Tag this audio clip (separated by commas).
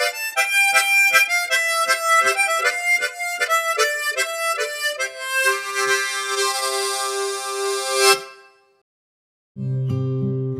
Music